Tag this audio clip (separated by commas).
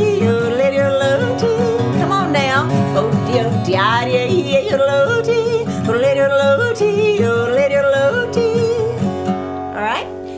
yodelling